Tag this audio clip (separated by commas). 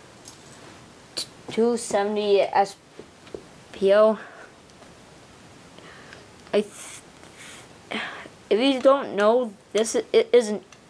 Speech